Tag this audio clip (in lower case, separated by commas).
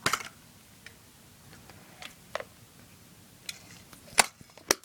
camera, mechanisms